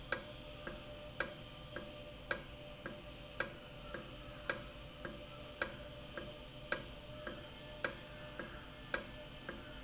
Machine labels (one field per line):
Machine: valve